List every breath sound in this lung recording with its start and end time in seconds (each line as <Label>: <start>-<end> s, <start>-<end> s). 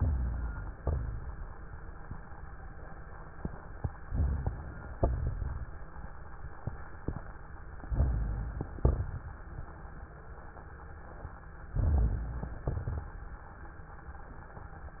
Inhalation: 0.00-0.76 s, 4.06-4.95 s, 7.89-8.77 s, 11.76-12.66 s
Exhalation: 0.76-1.37 s, 5.01-5.77 s, 8.82-9.54 s, 12.75-13.44 s
Crackles: 0.00-0.76 s, 0.78-1.35 s, 4.06-4.95 s, 4.99-5.77 s, 7.85-8.75 s, 8.78-9.56 s, 11.78-12.64 s, 12.75-13.44 s